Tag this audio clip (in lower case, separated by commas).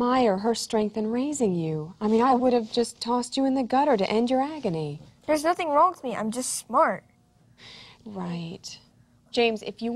female speech